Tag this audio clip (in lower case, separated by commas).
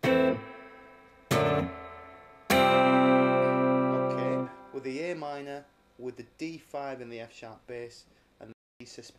strum, music, plucked string instrument, musical instrument, speech, guitar